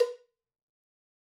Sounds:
cowbell, bell

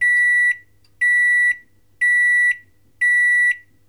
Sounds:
home sounds, microwave oven

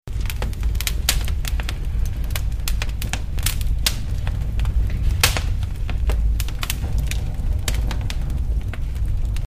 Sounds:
fire, crackle

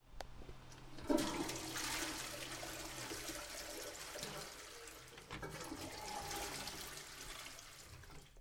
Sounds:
toilet flush, home sounds, water

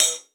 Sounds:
musical instrument, hi-hat, percussion, cymbal, music

